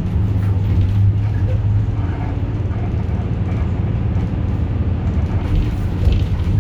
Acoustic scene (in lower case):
bus